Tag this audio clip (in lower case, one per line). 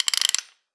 tools